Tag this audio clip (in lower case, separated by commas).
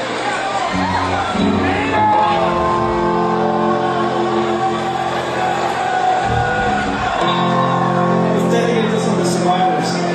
speech, music